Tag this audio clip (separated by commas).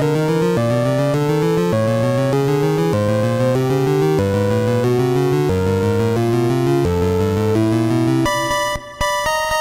Music